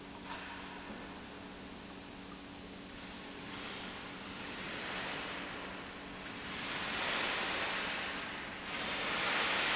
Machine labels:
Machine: pump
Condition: normal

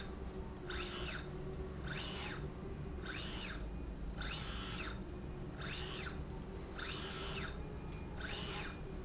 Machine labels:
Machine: slide rail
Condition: normal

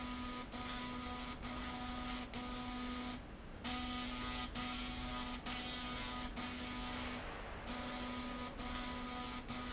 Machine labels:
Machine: slide rail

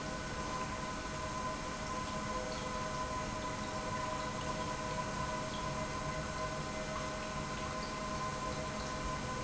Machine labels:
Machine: pump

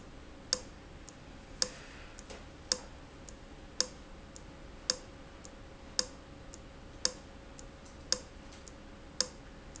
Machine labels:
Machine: valve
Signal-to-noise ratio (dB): 6 dB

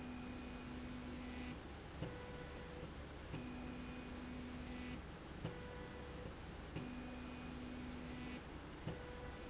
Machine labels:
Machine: slide rail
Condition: normal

